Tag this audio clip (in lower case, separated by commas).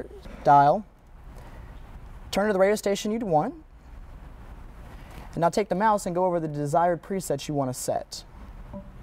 radio, speech